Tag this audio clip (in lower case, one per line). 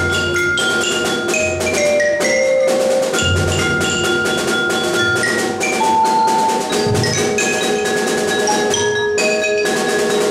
rimshot
percussion
drum kit
drum
snare drum